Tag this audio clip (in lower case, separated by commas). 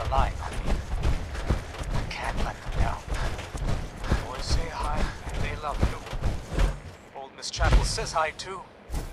speech